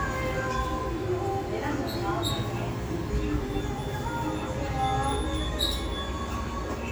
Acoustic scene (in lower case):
restaurant